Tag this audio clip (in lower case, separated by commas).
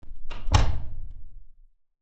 door, home sounds, slam